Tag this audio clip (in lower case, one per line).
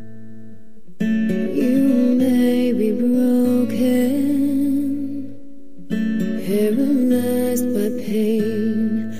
music